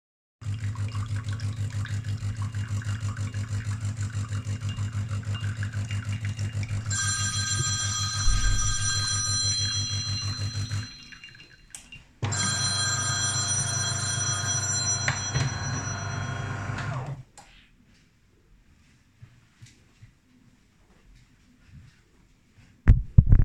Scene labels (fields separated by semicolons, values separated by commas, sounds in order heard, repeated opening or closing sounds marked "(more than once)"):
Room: kitchen; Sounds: coffee machine, phone ringing